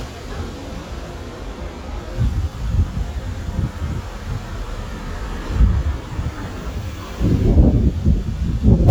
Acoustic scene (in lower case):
street